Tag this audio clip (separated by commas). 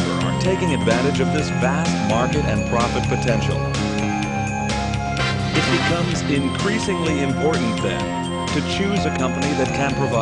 Music, Speech